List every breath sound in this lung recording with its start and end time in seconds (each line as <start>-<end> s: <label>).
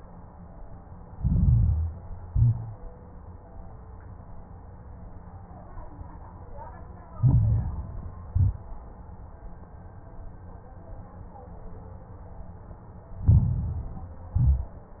1.04-2.03 s: inhalation
1.04-2.03 s: crackles
2.24-2.82 s: exhalation
2.24-2.82 s: crackles
7.12-8.11 s: inhalation
7.12-8.11 s: crackles
8.28-8.99 s: exhalation
8.28-8.99 s: crackles
13.21-14.19 s: inhalation
13.21-14.19 s: crackles
14.29-15.00 s: exhalation
14.29-15.00 s: crackles